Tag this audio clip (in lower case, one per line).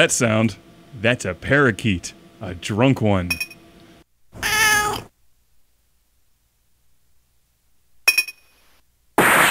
speech